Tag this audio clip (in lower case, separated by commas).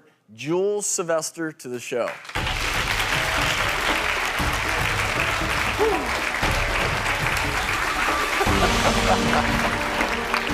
inside a large room or hall, speech, music